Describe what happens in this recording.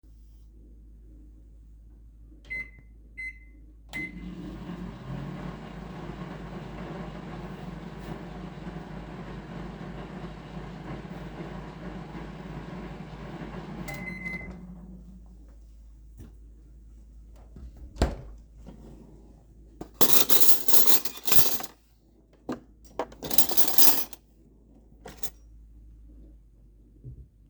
i started the microwave, when it was finished i grabbed some cutlery from the drawer